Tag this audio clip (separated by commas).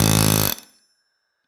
Tools